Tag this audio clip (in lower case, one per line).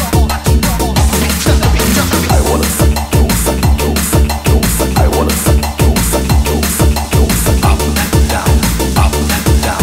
music